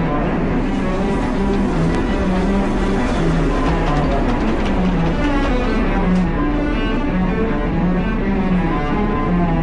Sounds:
musical instrument, music, cello

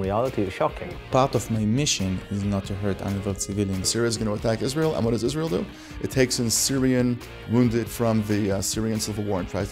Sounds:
speech, music

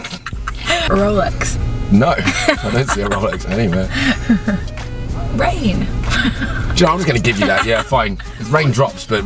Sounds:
speech, music

